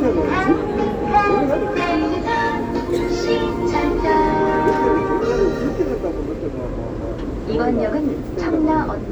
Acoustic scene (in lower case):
subway train